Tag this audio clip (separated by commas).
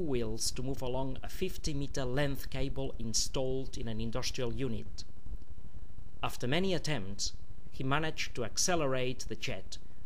Speech